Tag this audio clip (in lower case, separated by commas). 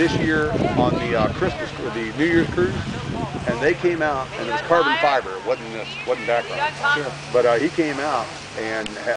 speech